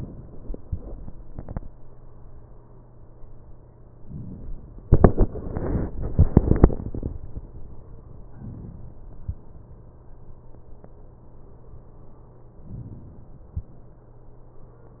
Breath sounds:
12.69-13.61 s: inhalation

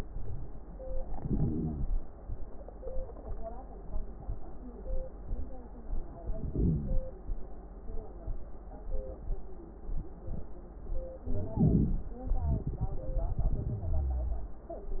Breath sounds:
1.11-1.97 s: inhalation
1.11-1.97 s: crackles
6.21-7.01 s: inhalation
11.28-12.08 s: inhalation
11.28-12.08 s: crackles
12.24-14.59 s: crackles
13.74-14.59 s: wheeze

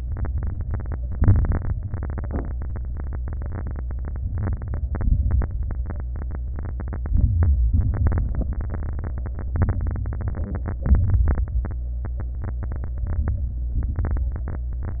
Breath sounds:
4.24-4.85 s: inhalation
4.24-4.85 s: crackles
4.86-5.46 s: exhalation
4.86-5.46 s: crackles
7.04-7.71 s: inhalation
7.73-8.33 s: exhalation
9.59-10.25 s: inhalation
9.59-10.25 s: crackles
10.86-11.46 s: exhalation
10.86-11.46 s: crackles
13.06-13.72 s: inhalation
13.06-13.72 s: crackles
13.77-14.31 s: exhalation
13.77-14.31 s: crackles

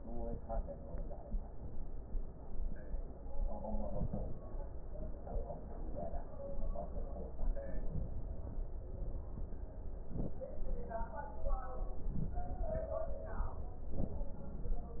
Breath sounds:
3.77-4.37 s: inhalation
3.77-4.37 s: crackles
7.78-8.38 s: inhalation
10.04-10.52 s: inhalation
11.97-12.46 s: inhalation
13.84-14.32 s: inhalation

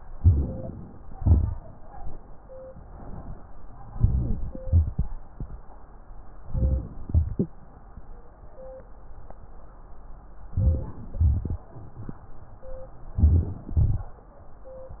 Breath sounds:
0.10-1.12 s: crackles
0.12-1.10 s: inhalation
1.14-2.12 s: exhalation
1.14-2.16 s: crackles
3.90-4.64 s: crackles
3.94-4.68 s: inhalation
4.65-5.53 s: crackles
4.65-5.55 s: exhalation
6.47-7.10 s: inhalation
7.13-7.76 s: exhalation
7.13-7.76 s: crackles
10.54-11.16 s: inhalation
11.18-12.24 s: exhalation
11.18-12.24 s: crackles
13.13-13.79 s: inhalation
13.76-14.48 s: crackles
13.78-14.52 s: exhalation

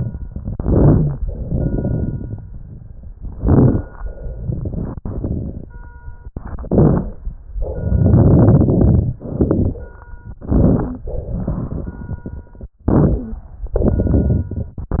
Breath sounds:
0.38-1.18 s: inhalation
0.38-1.18 s: crackles
1.22-2.38 s: exhalation
1.22-2.38 s: crackles
3.23-4.02 s: inhalation
3.23-4.02 s: crackles
4.08-5.65 s: exhalation
4.08-5.65 s: crackles
6.41-7.21 s: inhalation
6.41-7.21 s: crackles
7.57-9.21 s: exhalation
7.57-9.21 s: crackles
9.24-9.84 s: crackles
10.36-11.08 s: inhalation
10.36-11.08 s: crackles
11.12-12.76 s: exhalation
11.12-12.76 s: crackles
12.86-13.55 s: inhalation
12.86-13.55 s: crackles
13.66-15.00 s: exhalation
13.66-15.00 s: crackles

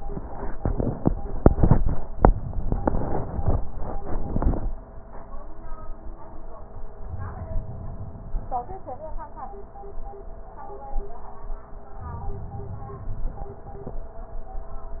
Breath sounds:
7.10-8.72 s: inhalation
11.96-13.74 s: inhalation

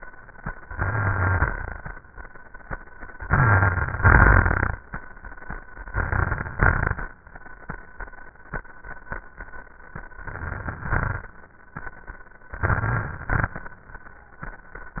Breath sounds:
0.70-1.53 s: inhalation
0.70-1.53 s: crackles
3.25-4.01 s: inhalation
3.25-4.01 s: crackles
4.02-4.78 s: exhalation
4.02-4.78 s: crackles
5.91-6.55 s: inhalation
5.91-6.55 s: crackles
6.56-7.16 s: exhalation
6.56-7.16 s: crackles
10.23-10.90 s: inhalation
10.23-10.90 s: crackles
10.91-11.42 s: exhalation
10.91-11.42 s: crackles
12.57-13.31 s: crackles
12.58-13.34 s: inhalation
13.33-13.81 s: exhalation
13.33-13.81 s: crackles

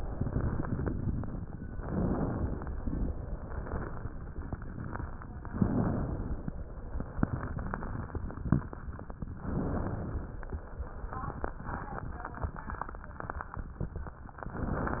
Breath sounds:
0.02-1.06 s: exhalation
0.02-1.06 s: crackles
1.71-2.75 s: inhalation
1.71-2.75 s: crackles
2.81-4.24 s: exhalation
2.81-4.24 s: crackles
5.51-6.55 s: inhalation
5.51-6.55 s: crackles
6.79-8.62 s: exhalation
6.79-8.62 s: crackles
9.43-10.47 s: inhalation
9.43-10.47 s: crackles
10.72-13.79 s: exhalation
10.72-13.79 s: crackles
14.44-15.00 s: inhalation
14.44-15.00 s: crackles

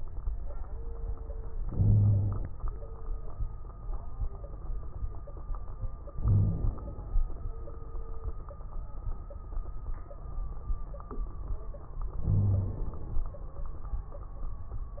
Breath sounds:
1.65-2.46 s: inhalation
1.65-2.46 s: wheeze
6.13-7.19 s: inhalation
6.18-6.75 s: wheeze
12.23-12.81 s: wheeze

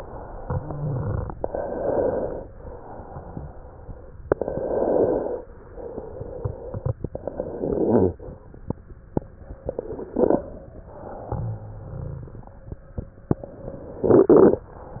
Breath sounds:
0.38-1.29 s: exhalation
0.54-1.26 s: rhonchi
1.37-2.41 s: inhalation
2.53-4.12 s: exhalation
4.30-5.38 s: inhalation
5.50-6.97 s: exhalation
7.13-8.13 s: inhalation
10.84-12.77 s: exhalation
11.28-12.42 s: rhonchi
13.37-14.70 s: inhalation

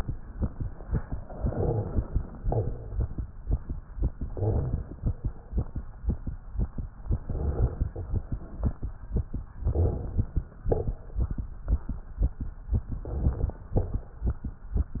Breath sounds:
1.50-2.39 s: inhalation
2.43-2.85 s: exhalation
2.43-2.85 s: crackles
4.17-5.07 s: inhalation
4.17-5.07 s: rhonchi
7.23-7.93 s: inhalation
7.23-7.93 s: rhonchi
9.68-10.38 s: inhalation
9.68-10.38 s: rhonchi
10.64-11.06 s: crackles
10.64-11.35 s: exhalation
13.05-13.70 s: inhalation
13.05-13.70 s: rhonchi
13.78-14.19 s: exhalation
13.78-14.19 s: crackles

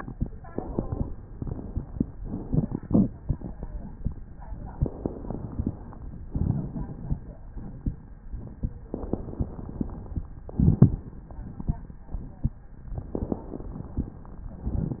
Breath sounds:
0.49-1.14 s: inhalation
2.18-3.11 s: exhalation
4.76-5.79 s: inhalation
6.28-7.21 s: exhalation
8.92-10.21 s: inhalation
10.49-11.14 s: exhalation
10.49-11.14 s: rhonchi
12.96-14.25 s: inhalation

